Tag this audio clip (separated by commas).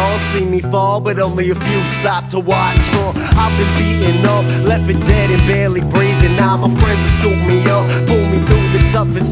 Music